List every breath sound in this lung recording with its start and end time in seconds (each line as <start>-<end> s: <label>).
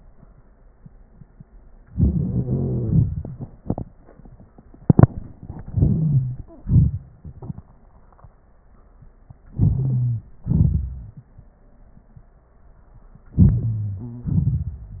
2.20-3.23 s: wheeze
5.74-6.36 s: wheeze
9.62-10.26 s: wheeze
13.40-14.07 s: wheeze
14.06-14.35 s: stridor